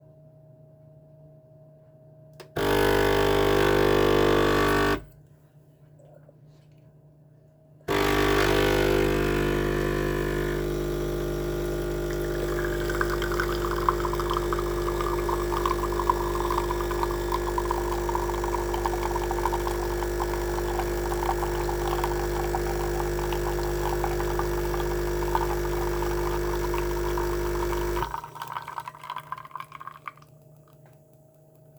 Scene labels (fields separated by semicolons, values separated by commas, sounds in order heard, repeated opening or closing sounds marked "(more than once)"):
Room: kitchen; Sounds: coffee machine